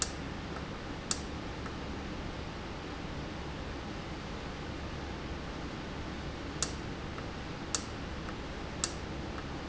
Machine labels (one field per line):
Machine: valve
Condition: normal